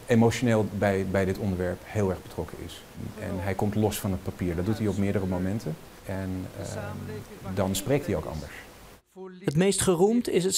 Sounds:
monologue, speech, male speech

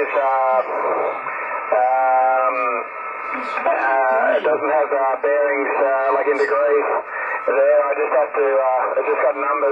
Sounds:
speech, radio

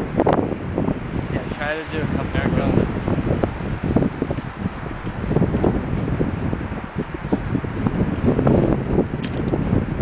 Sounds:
speech, wind noise, wind noise (microphone)

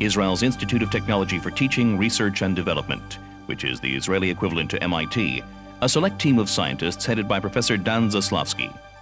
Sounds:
speech, music

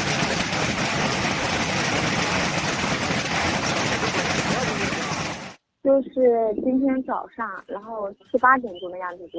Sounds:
hail

